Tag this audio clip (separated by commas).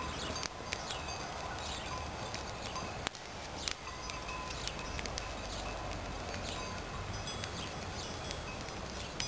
outside, rural or natural, Fire